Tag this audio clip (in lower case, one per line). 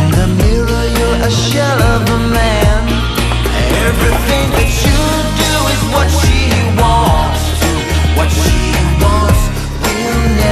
singing